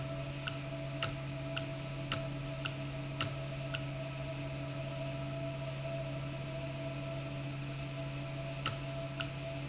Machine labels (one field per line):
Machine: valve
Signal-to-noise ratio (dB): -6 dB